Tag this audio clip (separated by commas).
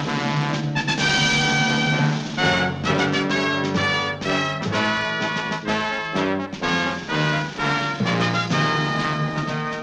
Timpani